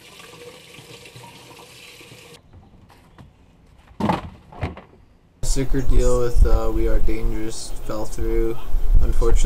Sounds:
Water, Sink (filling or washing), Water tap

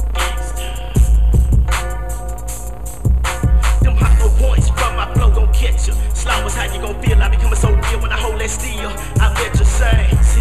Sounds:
Music, Lullaby

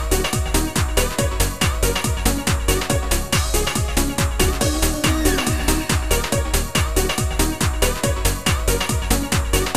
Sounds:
Music

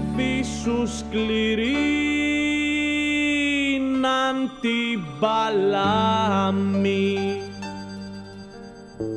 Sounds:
Music

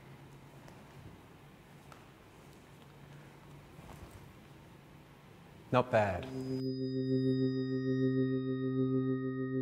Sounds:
Speech

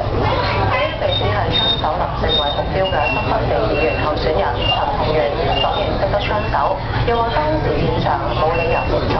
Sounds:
Speech

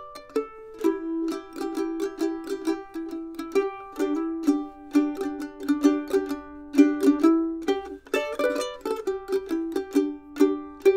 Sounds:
playing mandolin

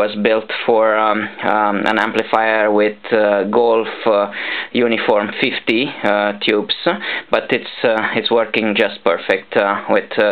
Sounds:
Speech

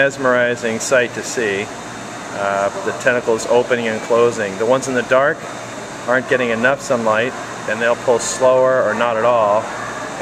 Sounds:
Speech

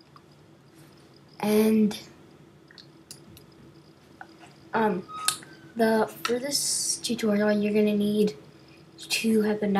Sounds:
Speech

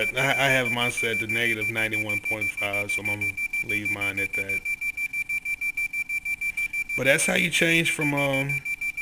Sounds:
Speech, inside a small room

